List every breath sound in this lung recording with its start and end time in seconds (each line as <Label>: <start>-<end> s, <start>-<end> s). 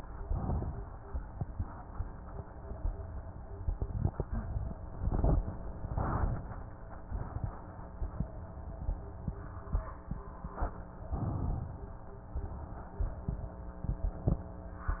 Inhalation: 0.31-1.10 s, 11.06-12.35 s
Exhalation: 12.35-13.59 s